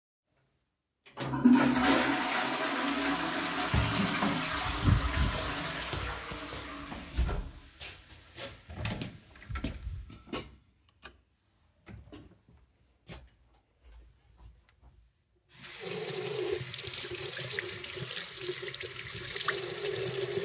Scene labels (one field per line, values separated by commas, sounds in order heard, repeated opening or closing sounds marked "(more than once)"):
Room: lavatory, bathroom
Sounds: toilet flushing, footsteps, door (more than once), light switch, running water